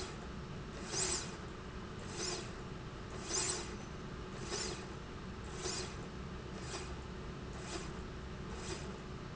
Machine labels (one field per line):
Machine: slide rail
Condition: normal